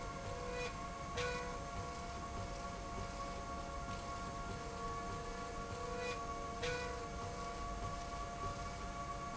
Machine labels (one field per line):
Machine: slide rail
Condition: normal